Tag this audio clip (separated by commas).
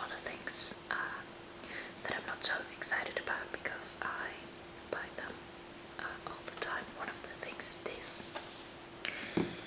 Whispering, Speech